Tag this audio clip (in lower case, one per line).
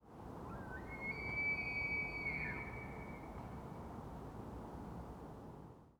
animal